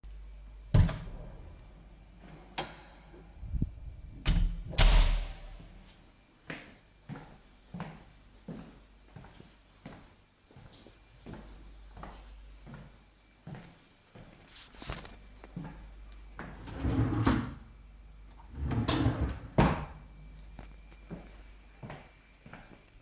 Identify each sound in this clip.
door, footsteps, wardrobe or drawer